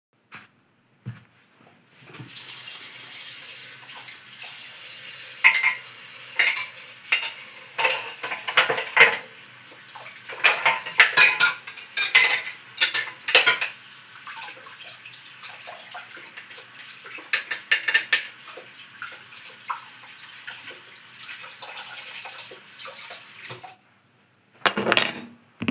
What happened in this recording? I turn on the water and wash a mug and spoon. After cleaning them I turn off the water and place the spoon on the table.